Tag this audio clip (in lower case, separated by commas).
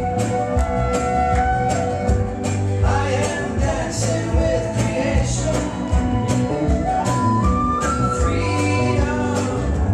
music